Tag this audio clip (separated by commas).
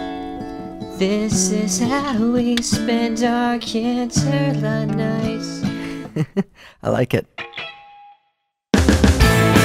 Music